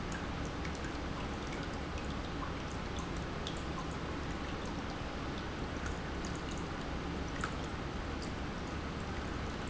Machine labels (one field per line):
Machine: pump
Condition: normal